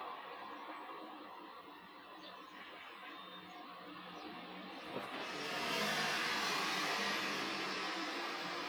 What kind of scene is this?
residential area